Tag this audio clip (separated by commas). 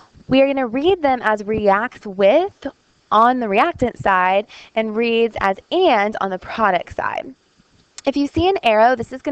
Speech